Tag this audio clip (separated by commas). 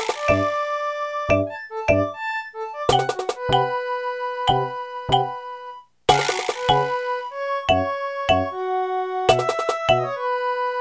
Music